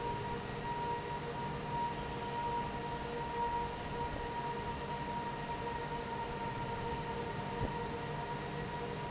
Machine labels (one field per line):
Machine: fan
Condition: normal